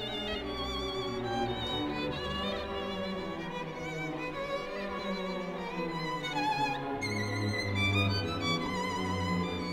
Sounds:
Musical instrument, Music, Violin

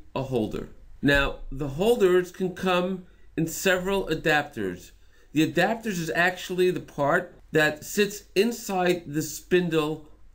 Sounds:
Speech

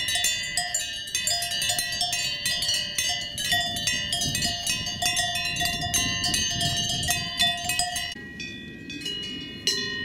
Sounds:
bovinae cowbell

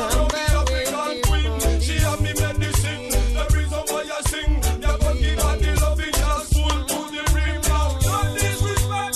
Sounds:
Music, Reggae

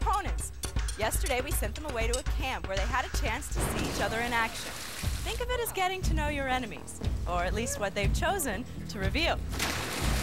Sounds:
Music, Speech

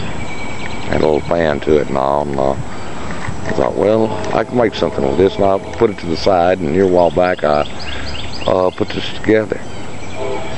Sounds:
Speech

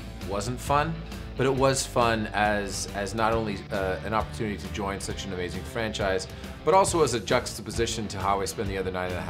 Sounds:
Music, Speech

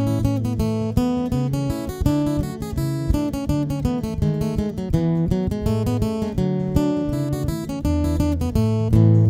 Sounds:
playing acoustic guitar, Acoustic guitar, Music

